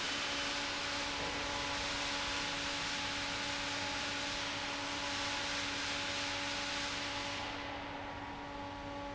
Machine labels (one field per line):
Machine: fan